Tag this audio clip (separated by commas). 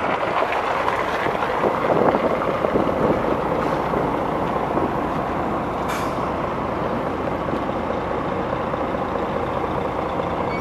Vehicle